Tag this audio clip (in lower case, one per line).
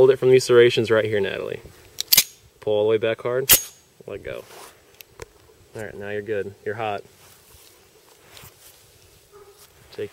speech
outside, rural or natural